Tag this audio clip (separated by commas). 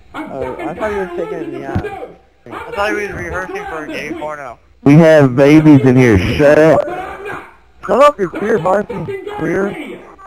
man speaking, Speech, Conversation, Speech synthesizer